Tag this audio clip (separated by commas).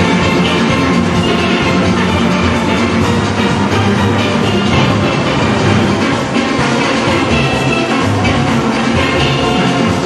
Music, Orchestra, Exciting music, Dance music